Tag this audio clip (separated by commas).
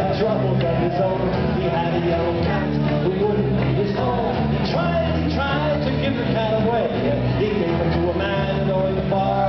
Music